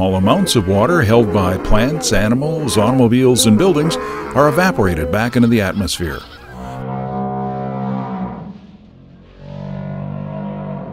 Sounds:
Speech

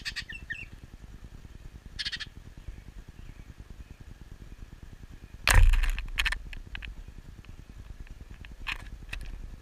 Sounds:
baltimore oriole calling

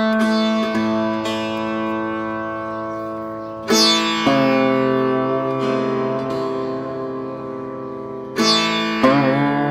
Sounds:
playing sitar

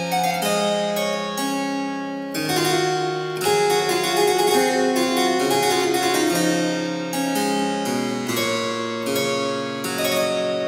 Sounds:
playing harpsichord

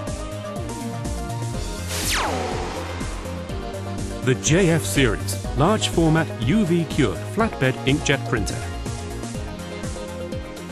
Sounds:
Speech, Music

